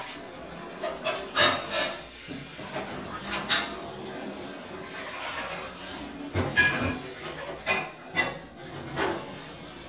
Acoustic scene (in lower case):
kitchen